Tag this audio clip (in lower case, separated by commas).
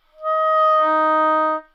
woodwind instrument, music, musical instrument